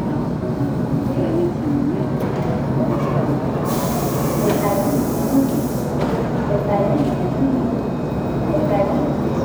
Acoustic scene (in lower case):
subway station